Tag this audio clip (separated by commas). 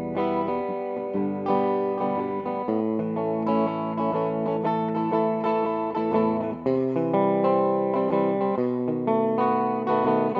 Strum, Music, Plucked string instrument, Musical instrument, Guitar